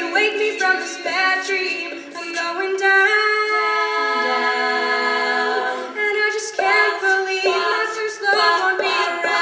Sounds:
Music, Singing, A capella, Choir

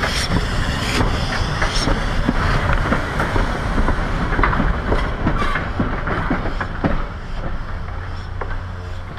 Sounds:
Clickety-clack, Train, train wagon, Rail transport

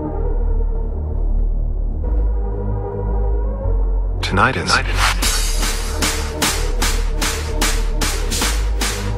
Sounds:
Speech, Music

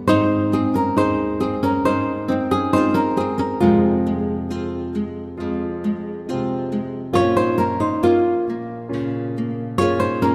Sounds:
Harp

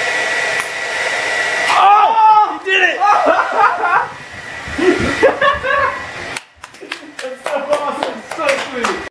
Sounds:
Speech

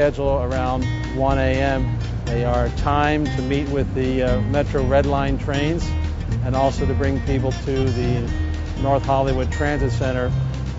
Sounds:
Speech, Music

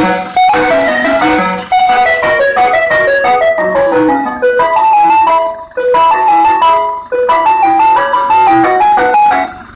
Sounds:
ice cream van, Music

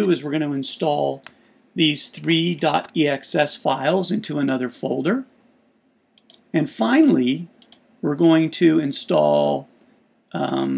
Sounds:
Speech

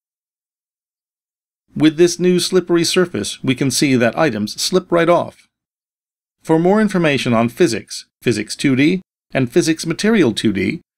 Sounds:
Speech

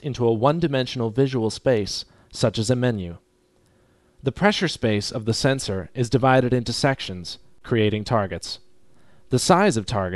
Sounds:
Speech

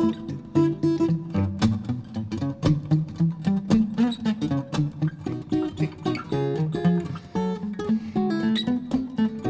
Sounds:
Music, Musical instrument, Acoustic guitar, playing acoustic guitar, Plucked string instrument, Guitar, Strum

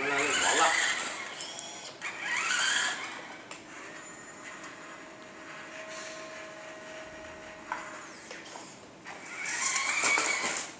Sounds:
Speech

